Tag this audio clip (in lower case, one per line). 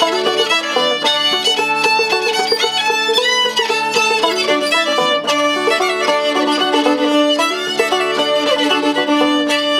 musical instrument
music
fiddle